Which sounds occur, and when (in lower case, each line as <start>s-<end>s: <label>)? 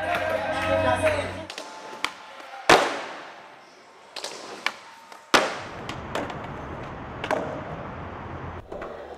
0.0s-1.4s: music
0.0s-1.4s: male speech
0.0s-2.2s: skateboard
0.0s-9.1s: mechanisms
2.7s-3.5s: skateboard
4.1s-6.9s: skateboard
7.2s-7.9s: skateboard
8.7s-9.1s: skateboard